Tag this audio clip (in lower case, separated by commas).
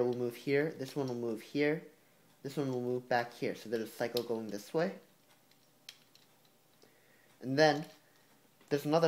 speech